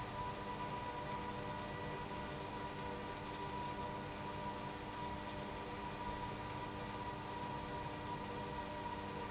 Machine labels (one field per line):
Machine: pump